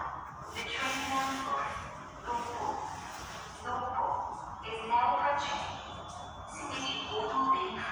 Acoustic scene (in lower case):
subway station